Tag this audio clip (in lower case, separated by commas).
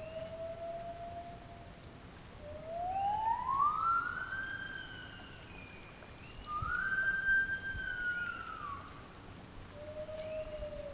gibbon howling